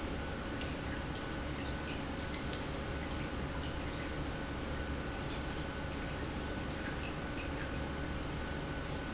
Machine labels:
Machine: pump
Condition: normal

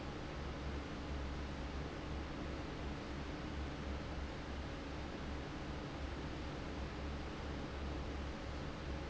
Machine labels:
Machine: fan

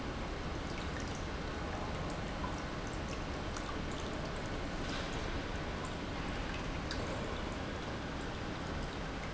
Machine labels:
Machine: pump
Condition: normal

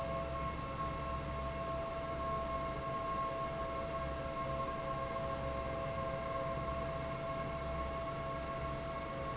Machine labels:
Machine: fan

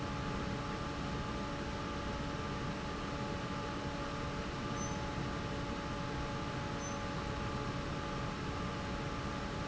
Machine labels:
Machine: fan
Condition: normal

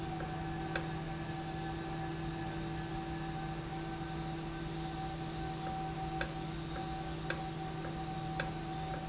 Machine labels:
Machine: valve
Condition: normal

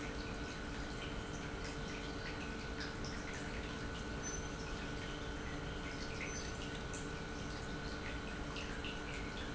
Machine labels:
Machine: pump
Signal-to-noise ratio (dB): 0 dB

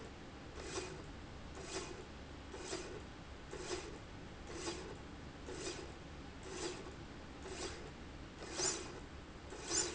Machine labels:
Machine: slide rail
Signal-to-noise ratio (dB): 6 dB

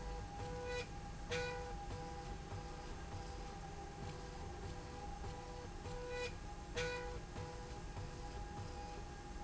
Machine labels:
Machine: slide rail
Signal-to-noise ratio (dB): 6 dB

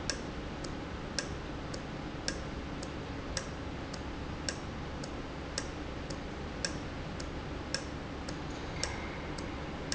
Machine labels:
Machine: valve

